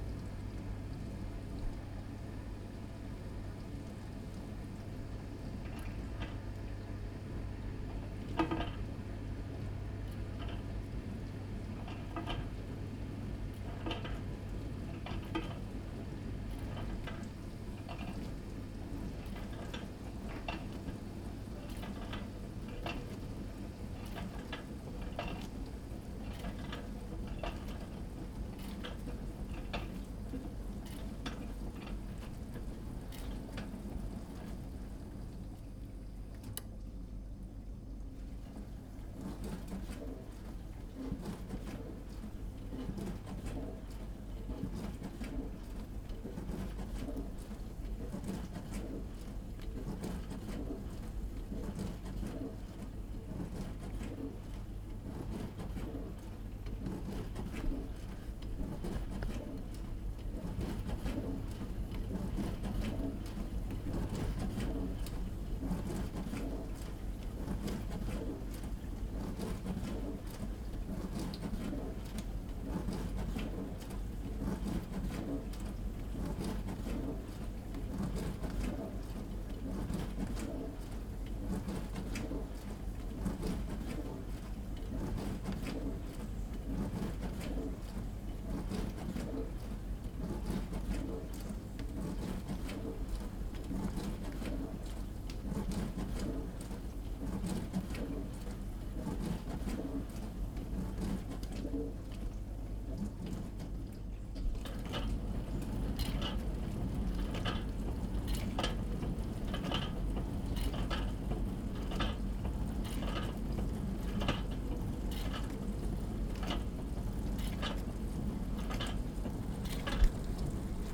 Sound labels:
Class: dishwasher